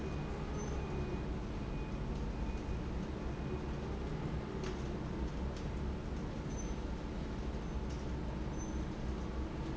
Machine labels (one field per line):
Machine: fan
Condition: normal